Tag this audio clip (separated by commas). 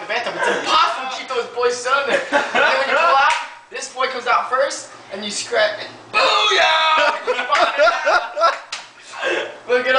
Speech